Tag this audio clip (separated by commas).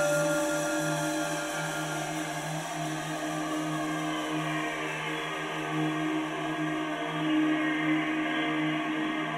Music, New-age music